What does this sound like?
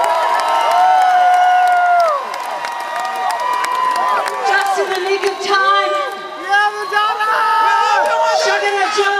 People applauding woman's speech